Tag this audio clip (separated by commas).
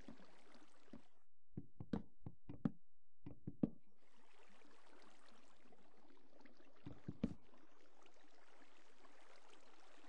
Stream